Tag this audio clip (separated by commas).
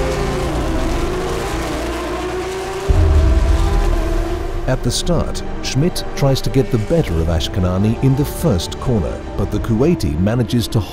Car, Race car, Vehicle